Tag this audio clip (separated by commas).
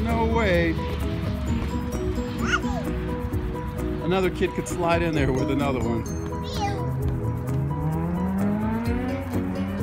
Music, Speech